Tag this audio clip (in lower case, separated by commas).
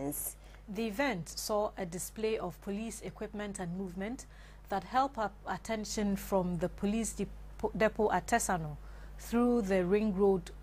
speech